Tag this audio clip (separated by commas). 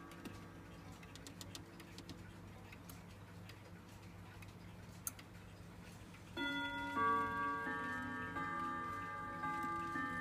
Tick-tock